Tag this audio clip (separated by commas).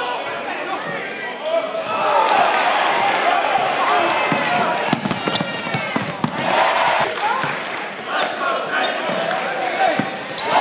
Basketball bounce